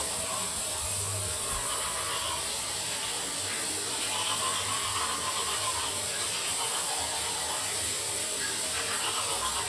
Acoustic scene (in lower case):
restroom